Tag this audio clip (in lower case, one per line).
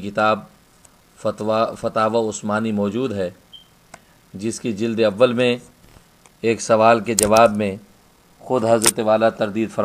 speech